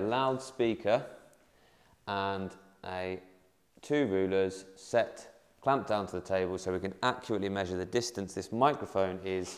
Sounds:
Speech

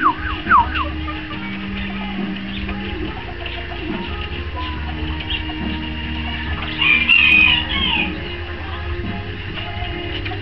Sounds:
Music, Bird, Pigeon

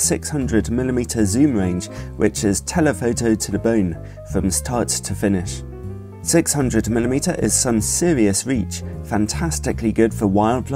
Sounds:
Music, Speech

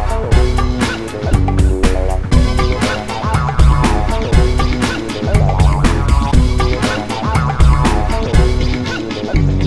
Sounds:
Theme music, Music

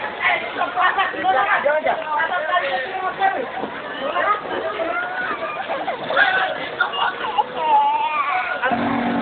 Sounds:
Speech, Vehicle, Truck

